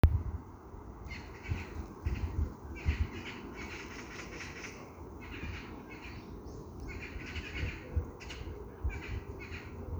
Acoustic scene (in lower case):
park